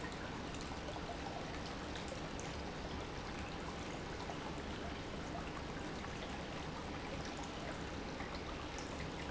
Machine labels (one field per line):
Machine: pump